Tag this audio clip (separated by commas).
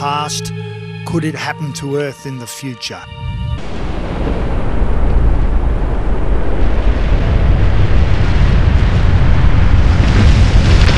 Speech, Music